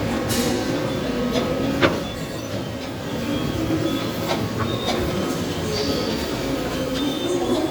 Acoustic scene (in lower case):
subway station